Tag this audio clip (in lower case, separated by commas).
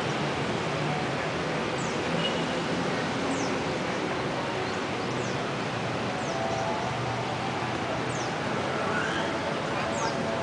outside, urban or man-made, bird